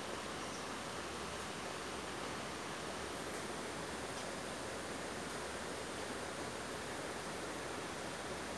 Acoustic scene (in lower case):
park